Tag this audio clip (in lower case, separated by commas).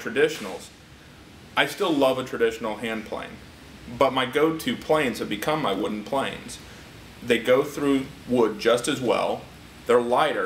speech